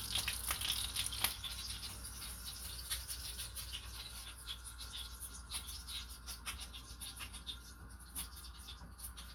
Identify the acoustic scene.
kitchen